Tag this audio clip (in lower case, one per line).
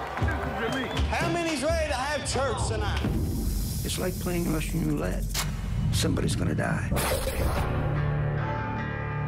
inside a large room or hall
snake
hiss
speech
music